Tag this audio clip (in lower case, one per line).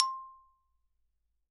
xylophone
percussion
music
musical instrument
mallet percussion